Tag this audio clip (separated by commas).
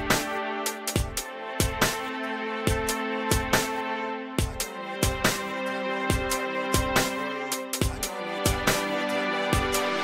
Music